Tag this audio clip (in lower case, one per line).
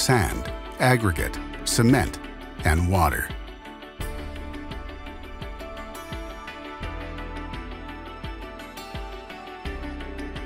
speech
music